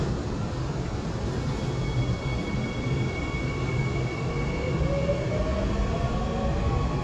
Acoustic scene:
subway train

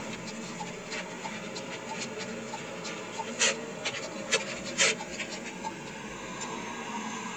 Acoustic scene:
car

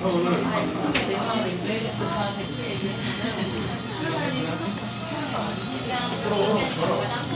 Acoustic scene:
crowded indoor space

